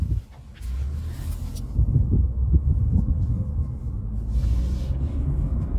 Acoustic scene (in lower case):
car